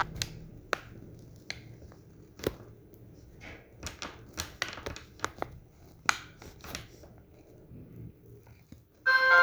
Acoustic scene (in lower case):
elevator